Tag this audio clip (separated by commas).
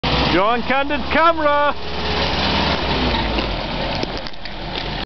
Speech, Vehicle